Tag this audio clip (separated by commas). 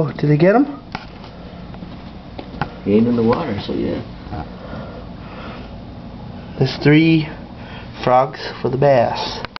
Speech